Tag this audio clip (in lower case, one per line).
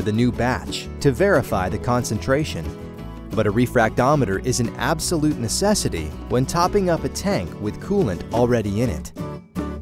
speech
music